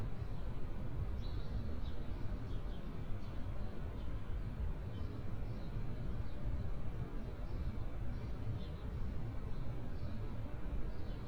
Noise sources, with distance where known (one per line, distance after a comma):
background noise